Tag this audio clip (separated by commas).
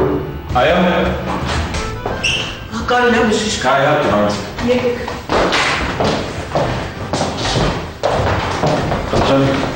Speech, Music